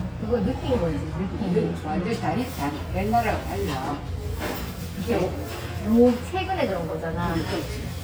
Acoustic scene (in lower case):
restaurant